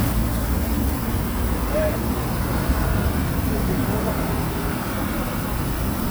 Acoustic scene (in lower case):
street